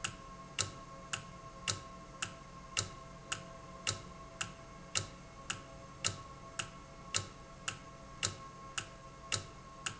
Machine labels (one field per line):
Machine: valve